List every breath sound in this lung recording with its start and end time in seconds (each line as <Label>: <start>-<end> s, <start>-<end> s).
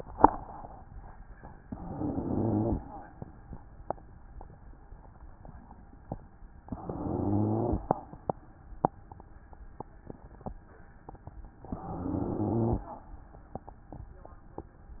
Inhalation: 1.63-2.75 s, 6.75-7.88 s, 11.74-12.87 s
Rhonchi: 1.63-2.75 s, 6.75-7.88 s, 11.74-12.87 s